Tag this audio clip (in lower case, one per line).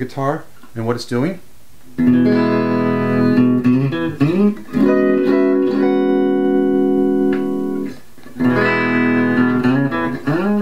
speech
bass guitar
guitar
electric guitar
music
plucked string instrument
electronic tuner
musical instrument